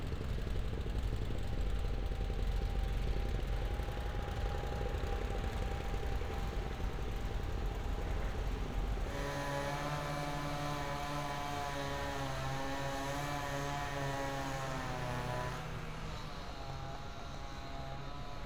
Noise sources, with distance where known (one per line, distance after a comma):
unidentified impact machinery